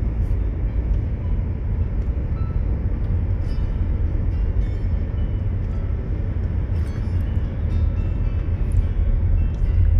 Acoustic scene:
car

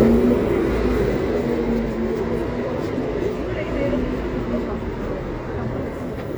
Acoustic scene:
residential area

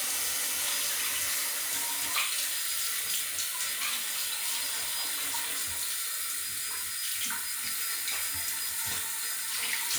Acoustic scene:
restroom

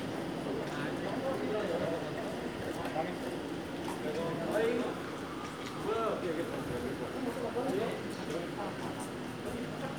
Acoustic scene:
street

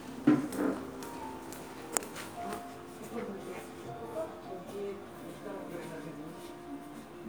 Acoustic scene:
crowded indoor space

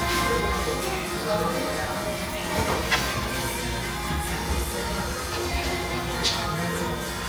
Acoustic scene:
cafe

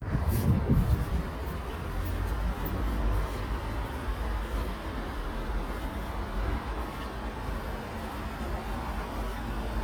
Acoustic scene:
residential area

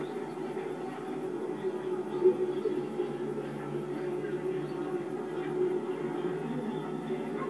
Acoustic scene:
park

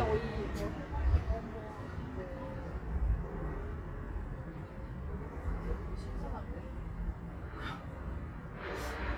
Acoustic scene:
residential area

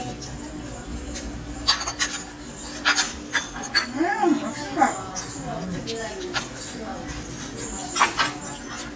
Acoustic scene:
restaurant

